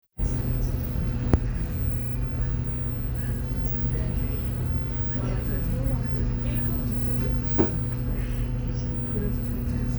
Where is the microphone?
on a bus